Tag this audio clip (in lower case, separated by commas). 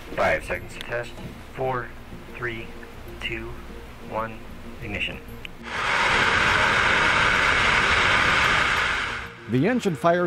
music, speech, jet engine